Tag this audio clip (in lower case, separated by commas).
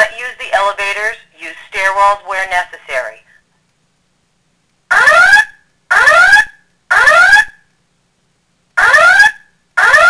fire alarm, speech